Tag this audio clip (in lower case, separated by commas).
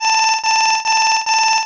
alarm